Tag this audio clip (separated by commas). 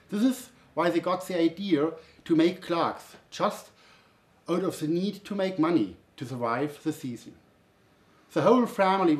Speech